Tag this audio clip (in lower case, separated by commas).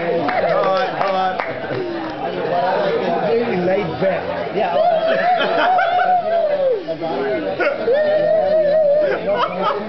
speech